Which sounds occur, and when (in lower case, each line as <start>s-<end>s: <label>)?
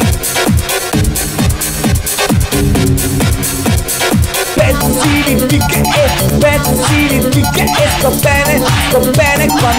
0.0s-9.7s: music
4.5s-9.7s: male singing